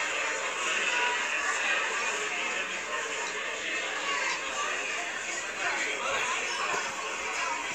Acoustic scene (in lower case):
crowded indoor space